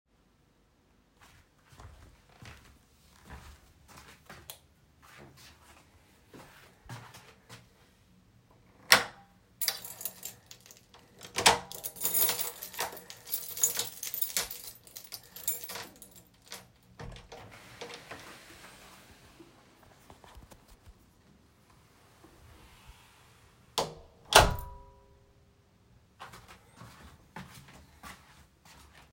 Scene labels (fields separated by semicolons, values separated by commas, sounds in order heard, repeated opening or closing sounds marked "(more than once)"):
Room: hallway; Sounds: footsteps, light switch, door (more than once), keys